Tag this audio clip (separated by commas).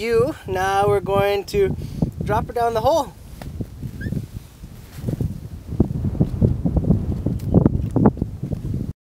outside, rural or natural, Speech